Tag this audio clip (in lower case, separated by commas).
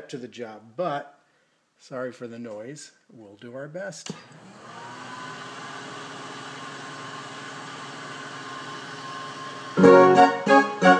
music, musical instrument, speech